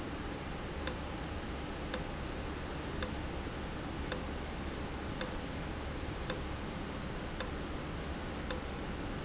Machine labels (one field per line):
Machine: valve